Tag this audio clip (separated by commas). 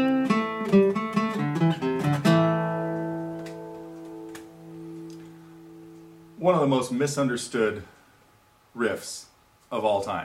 Speech, Music